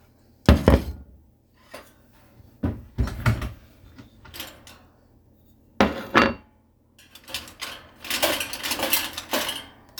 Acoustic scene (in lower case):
kitchen